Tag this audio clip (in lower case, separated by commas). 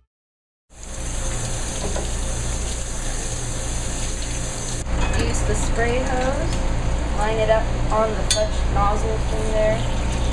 water, water tap